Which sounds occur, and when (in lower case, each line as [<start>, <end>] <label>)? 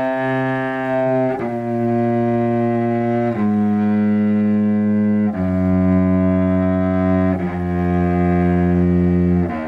[0.00, 9.65] music